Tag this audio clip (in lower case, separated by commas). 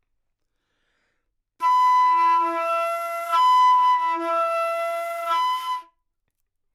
music, woodwind instrument, musical instrument